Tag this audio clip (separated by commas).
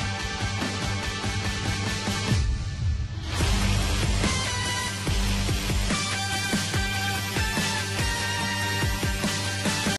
Music